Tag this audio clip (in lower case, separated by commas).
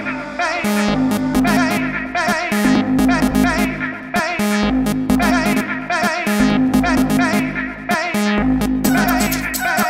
music, electronic music, electronica